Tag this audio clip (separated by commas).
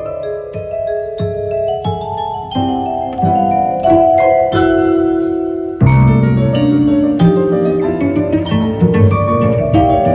playing vibraphone